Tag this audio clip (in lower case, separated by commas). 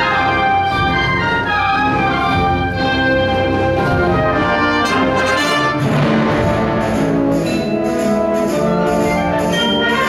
orchestra, music